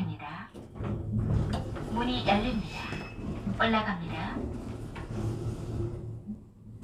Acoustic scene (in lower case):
elevator